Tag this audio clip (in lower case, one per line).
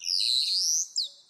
wild animals
bird
animal